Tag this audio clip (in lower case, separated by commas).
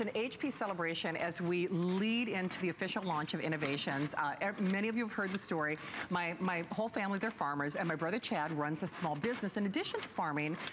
speech